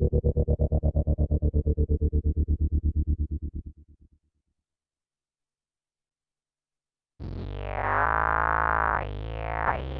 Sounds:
music
synthesizer
effects unit

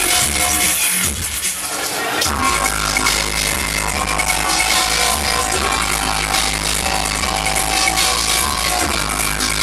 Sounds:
music
dubstep
electronic music

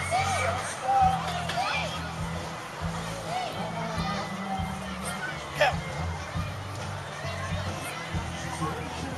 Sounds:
music
speech

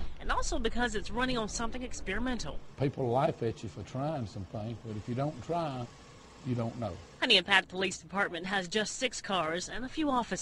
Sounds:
speech

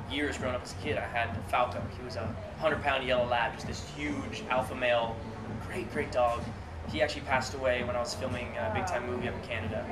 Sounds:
music
speech

